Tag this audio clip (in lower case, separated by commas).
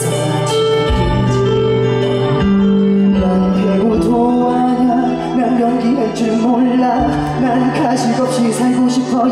pop music, music